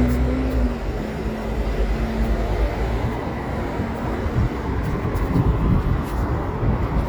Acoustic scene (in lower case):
residential area